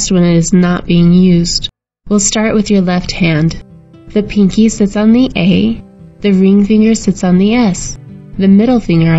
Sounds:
speech
monologue

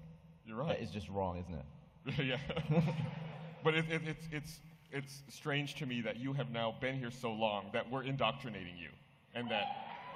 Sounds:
speech

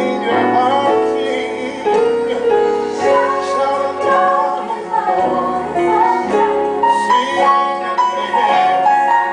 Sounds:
music

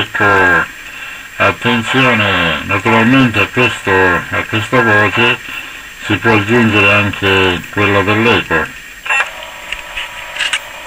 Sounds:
speech
radio

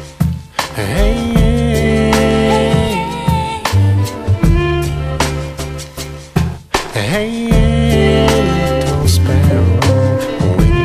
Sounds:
music

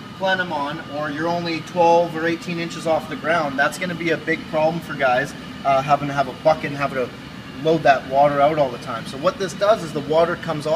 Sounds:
speech

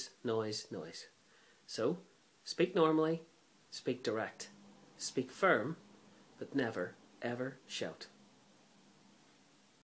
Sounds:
speech

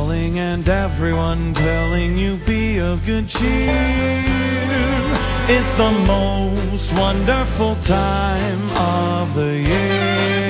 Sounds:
music

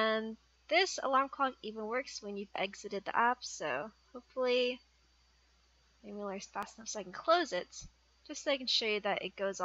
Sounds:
speech

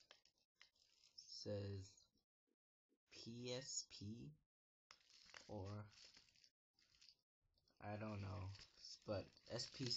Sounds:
speech

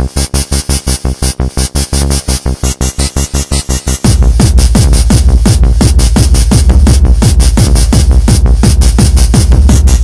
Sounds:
music
techno
electronic music

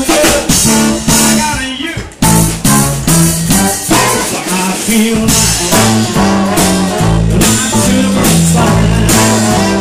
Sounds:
music

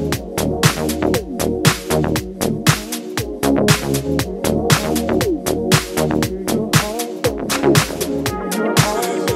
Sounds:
music

